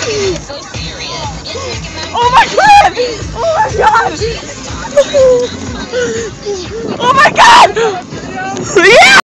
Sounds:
speech, music

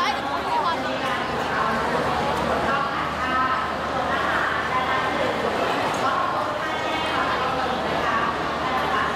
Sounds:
speech

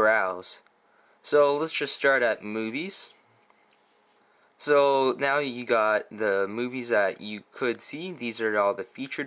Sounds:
speech

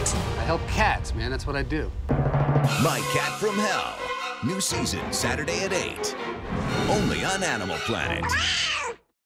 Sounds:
speech, music, animal, domestic animals, cat

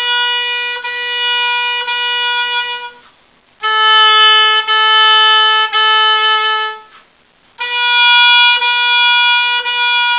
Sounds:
playing oboe

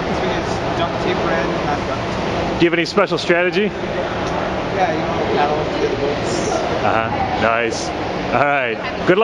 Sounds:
speech

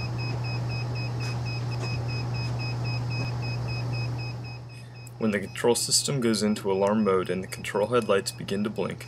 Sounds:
speech

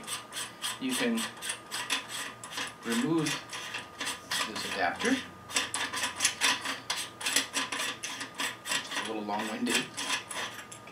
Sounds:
inside a small room, speech

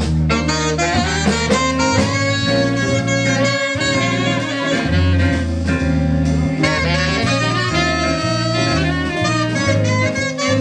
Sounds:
jazz, music, harmonica

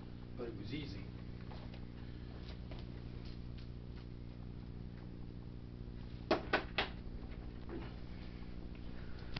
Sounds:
speech, walk

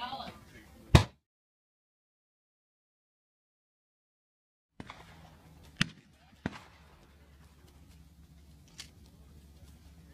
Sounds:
smack

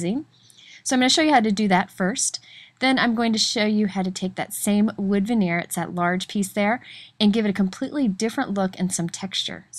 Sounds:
speech

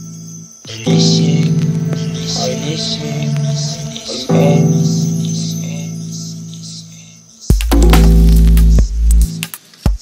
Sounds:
music

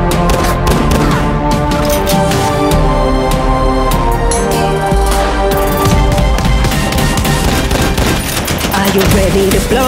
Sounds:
music, fusillade

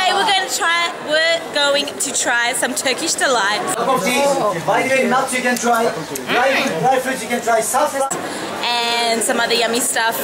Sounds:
speech

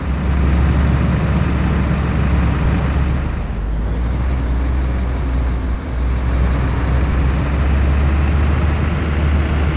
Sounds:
vehicle

